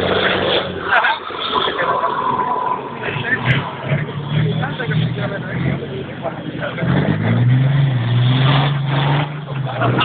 Wind with faint speech and vehicle running in the background